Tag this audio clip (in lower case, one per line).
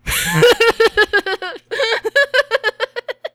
laughter
giggle
human voice